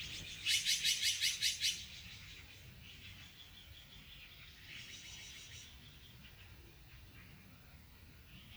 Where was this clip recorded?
in a park